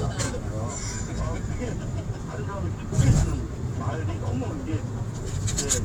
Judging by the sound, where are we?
in a car